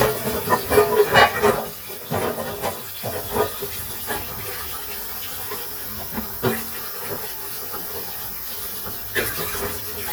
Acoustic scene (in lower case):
kitchen